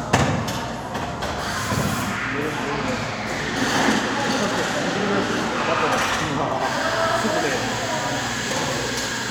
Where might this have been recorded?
in a cafe